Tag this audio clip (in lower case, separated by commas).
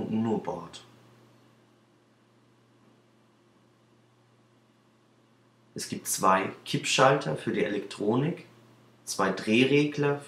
speech